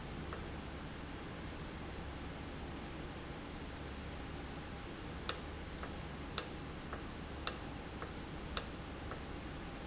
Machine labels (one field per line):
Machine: valve